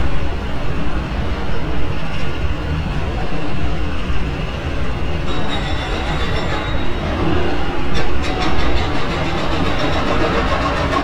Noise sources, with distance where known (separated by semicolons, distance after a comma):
unidentified impact machinery